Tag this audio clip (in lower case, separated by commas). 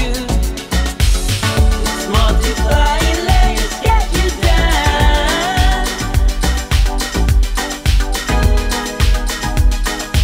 music